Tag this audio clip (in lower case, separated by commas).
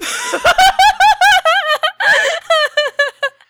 human voice, laughter